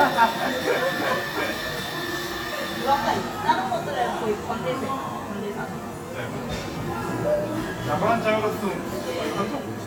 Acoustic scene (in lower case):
cafe